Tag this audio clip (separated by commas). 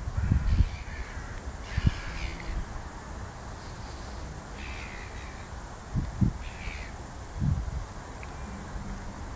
Bird, Animal